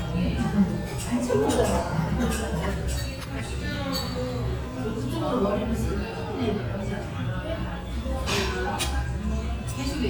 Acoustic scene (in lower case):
restaurant